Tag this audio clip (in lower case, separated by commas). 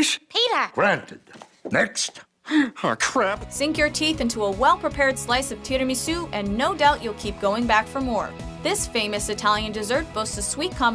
speech, music